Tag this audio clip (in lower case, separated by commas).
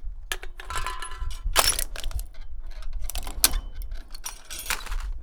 crushing